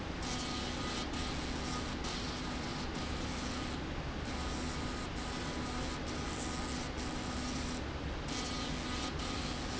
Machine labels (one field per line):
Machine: slide rail